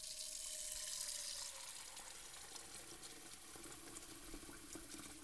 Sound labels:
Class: water tap